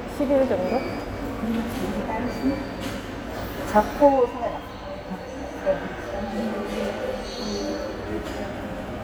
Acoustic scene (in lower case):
subway station